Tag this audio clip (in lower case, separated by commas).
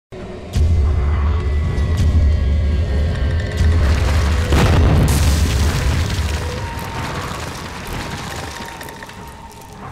boom, music